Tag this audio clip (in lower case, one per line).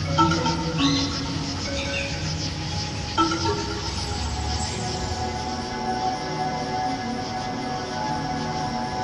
harmonic
music